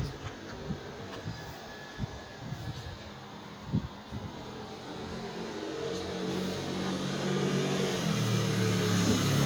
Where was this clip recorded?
in a residential area